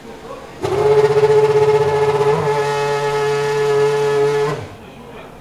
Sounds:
auto racing, motor vehicle (road), vehicle, car, engine, accelerating

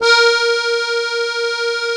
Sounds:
music, accordion, musical instrument

